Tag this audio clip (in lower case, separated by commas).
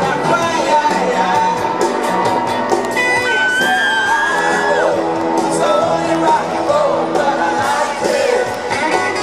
rock and roll, music